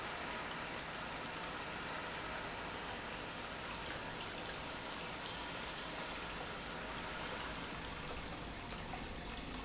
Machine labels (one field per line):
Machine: pump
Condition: normal